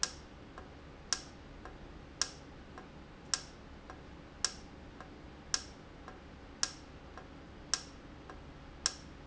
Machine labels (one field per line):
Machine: valve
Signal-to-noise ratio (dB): 6 dB